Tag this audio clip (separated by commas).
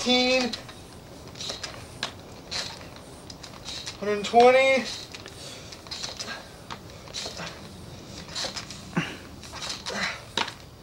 Speech